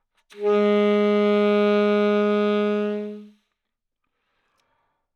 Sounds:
music, woodwind instrument, musical instrument

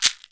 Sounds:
percussion, music, musical instrument, rattle (instrument)

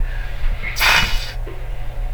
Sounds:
hiss

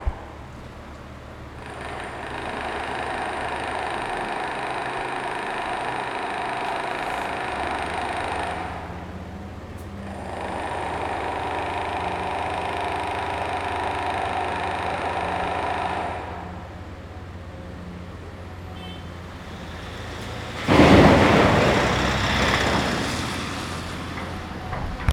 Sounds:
tools

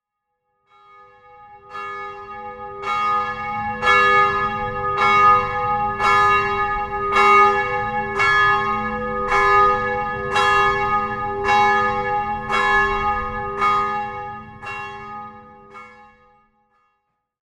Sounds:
church bell, bell

